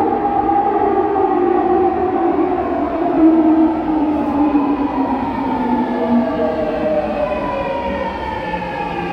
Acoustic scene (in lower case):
subway station